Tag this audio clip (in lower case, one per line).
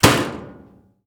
slam
door
domestic sounds